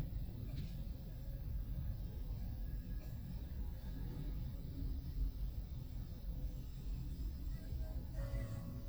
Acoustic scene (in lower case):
car